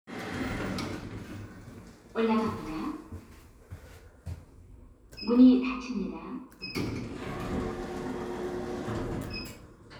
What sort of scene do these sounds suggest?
elevator